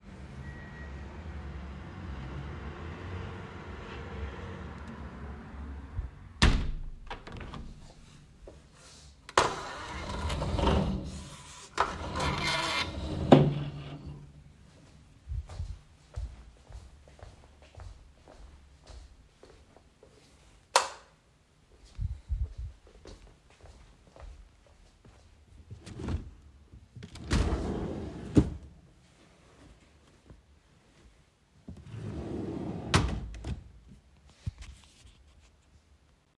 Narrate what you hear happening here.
I closed the window and the blinds. Then, I walked to my bedroom, turned on the lights, and opened a drawer in my cabinet to change.